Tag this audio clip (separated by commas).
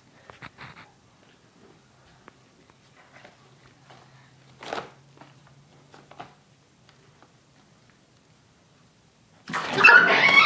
Domestic animals, Dog, Animal